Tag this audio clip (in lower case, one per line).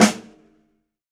musical instrument
music
drum
percussion
snare drum